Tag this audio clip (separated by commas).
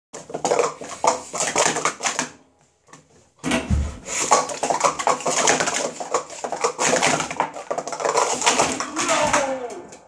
inside a small room, Speech